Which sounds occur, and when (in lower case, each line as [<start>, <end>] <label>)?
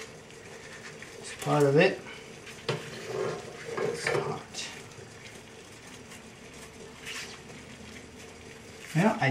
[0.00, 9.30] boiling
[0.35, 0.95] surface contact
[1.16, 1.32] surface contact
[1.36, 1.62] generic impact sounds
[1.41, 1.91] male speech
[2.40, 2.75] generic impact sounds
[2.92, 3.92] surface contact
[3.72, 4.29] generic impact sounds
[3.91, 4.71] human voice
[5.80, 6.19] generic impact sounds
[6.50, 6.68] generic impact sounds
[7.00, 7.36] generic impact sounds
[7.63, 8.25] generic impact sounds
[8.75, 9.03] generic impact sounds